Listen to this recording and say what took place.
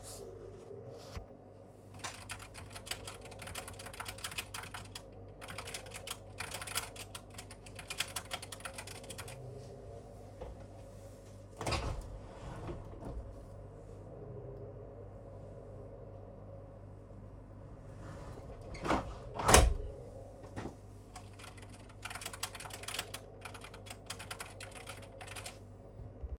I place the recording device on the desk near the window. I type on the keyboard, then open the window, wait for a moment, and close it again. After that, I continue typing briefly.